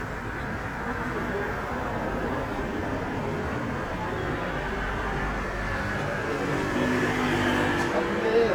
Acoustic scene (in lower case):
street